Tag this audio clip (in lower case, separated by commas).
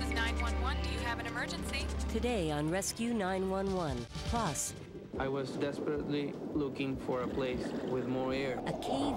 speech, music